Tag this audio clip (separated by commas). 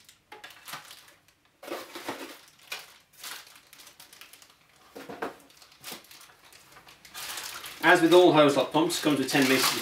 Speech